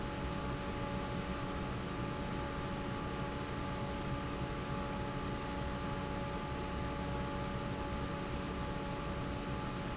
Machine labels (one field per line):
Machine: fan